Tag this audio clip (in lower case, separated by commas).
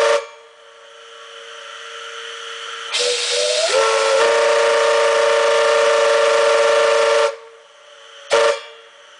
steam whistle